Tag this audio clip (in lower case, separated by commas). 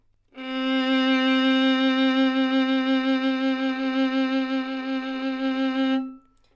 bowed string instrument, musical instrument, music